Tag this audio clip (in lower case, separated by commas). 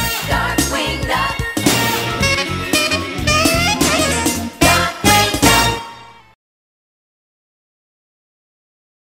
music